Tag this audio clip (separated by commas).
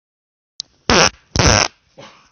Fart